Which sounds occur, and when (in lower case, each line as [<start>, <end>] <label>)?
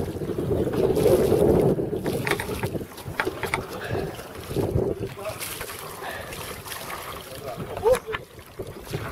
[0.00, 2.79] wind noise (microphone)
[0.00, 9.11] water
[0.00, 9.11] wind
[2.23, 2.70] generic impact sounds
[2.95, 3.61] generic impact sounds
[3.03, 4.16] wind noise (microphone)
[3.74, 4.12] breathing
[4.42, 5.29] wind noise (microphone)
[5.13, 5.39] human voice
[5.95, 6.33] breathing
[7.40, 8.14] human voice
[7.45, 8.09] wind noise (microphone)
[7.85, 8.05] generic impact sounds
[8.06, 8.18] tick
[8.51, 9.11] wind noise (microphone)